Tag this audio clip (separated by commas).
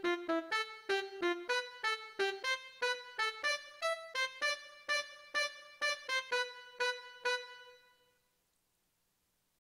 Music, Trumpet